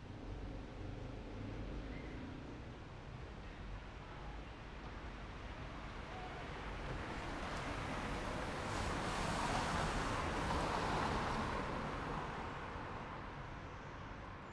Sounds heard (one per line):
motorcycle engine idling
car wheels rolling
motorcycle engine accelerating
car
motorcycle